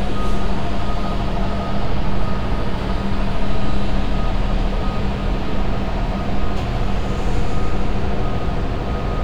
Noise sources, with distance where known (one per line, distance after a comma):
unidentified impact machinery, far
reverse beeper